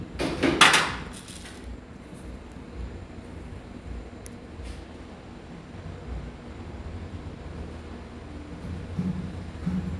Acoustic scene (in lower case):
cafe